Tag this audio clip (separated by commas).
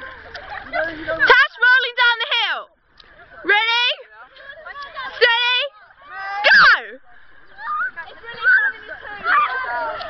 Speech